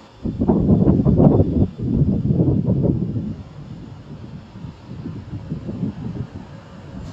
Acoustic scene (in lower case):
street